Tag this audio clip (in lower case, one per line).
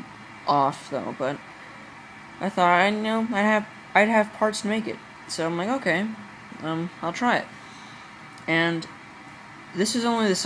speech